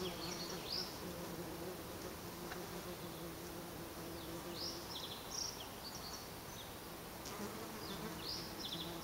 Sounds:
bee or wasp, insect, housefly, etc. buzzing

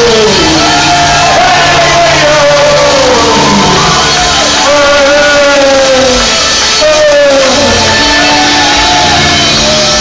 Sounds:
musical instrument, music

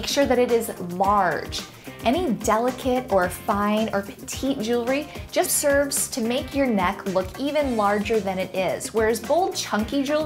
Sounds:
speech, music

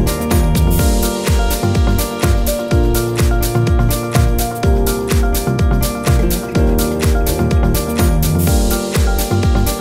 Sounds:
music

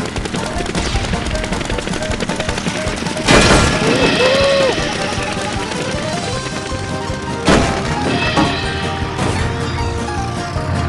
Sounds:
music, helicopter

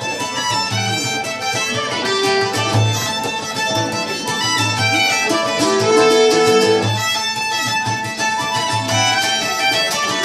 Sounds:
musical instrument, speech, music, fiddle, pizzicato

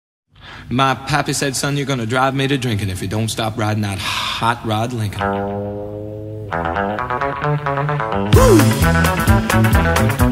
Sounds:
speech, music

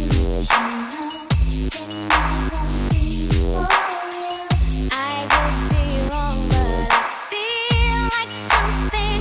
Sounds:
music, electronic music

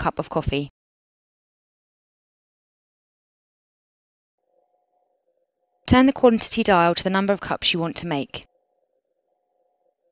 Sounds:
speech

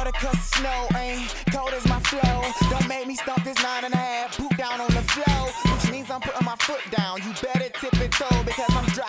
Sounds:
music

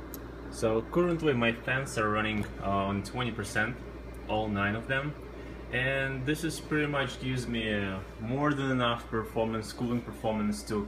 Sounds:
speech

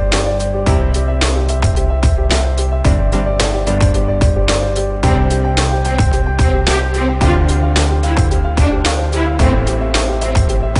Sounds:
music

